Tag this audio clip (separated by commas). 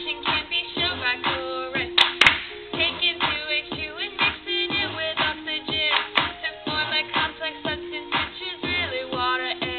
Music